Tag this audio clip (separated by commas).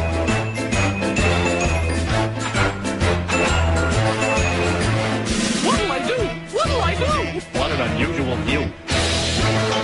Music, Speech